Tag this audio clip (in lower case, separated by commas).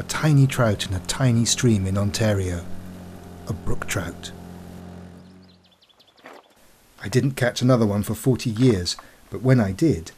speech, animal